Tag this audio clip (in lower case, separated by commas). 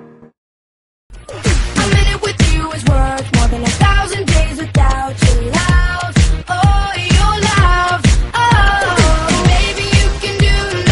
music